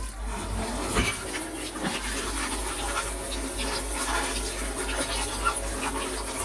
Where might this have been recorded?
in a kitchen